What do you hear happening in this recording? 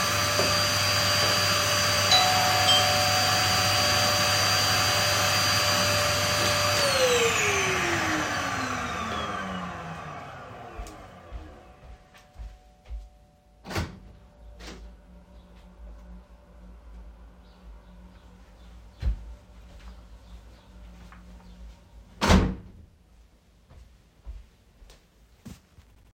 While vacuum cleaning, someone rang the bell from outside, so I turned off the vacuum cleaner and went to open the door. I opened the door and the person walked in. Then I closed the door again.